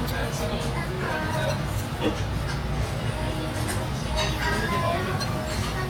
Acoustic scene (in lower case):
restaurant